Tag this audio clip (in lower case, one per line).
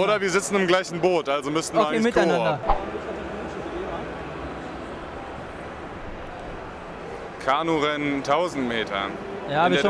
speech